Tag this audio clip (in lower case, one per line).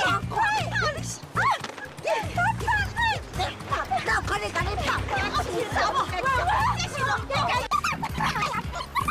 splashing water